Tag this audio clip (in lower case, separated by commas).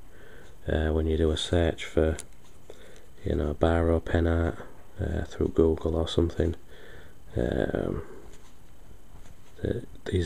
inside a small room, writing, speech